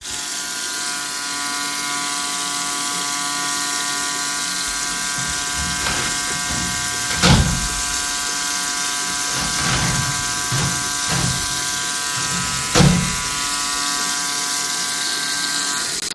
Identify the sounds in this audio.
running water, door